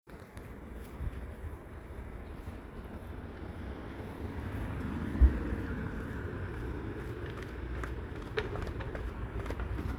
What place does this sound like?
residential area